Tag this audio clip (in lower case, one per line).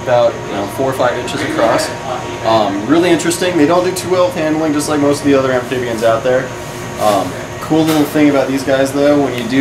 speech